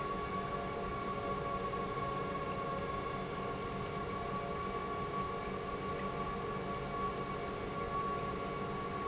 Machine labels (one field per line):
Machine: pump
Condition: normal